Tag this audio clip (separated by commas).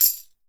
Musical instrument, Percussion, Tambourine, Music